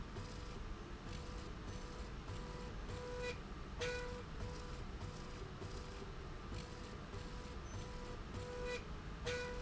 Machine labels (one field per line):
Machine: slide rail